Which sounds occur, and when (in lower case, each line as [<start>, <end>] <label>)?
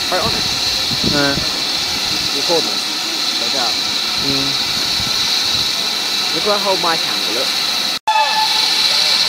[0.00, 9.25] hiss
[0.00, 9.25] train
[0.07, 0.42] male speech
[0.85, 1.08] wind noise (microphone)
[0.96, 1.50] male speech
[1.34, 1.43] wind noise (microphone)
[1.87, 2.28] wind noise (microphone)
[2.03, 2.69] male speech
[3.43, 3.78] male speech
[4.17, 4.58] male speech
[4.87, 5.10] wind noise (microphone)
[5.43, 5.70] wind noise (microphone)
[6.34, 7.00] male speech
[7.20, 7.57] male speech
[8.06, 8.94] steam whistle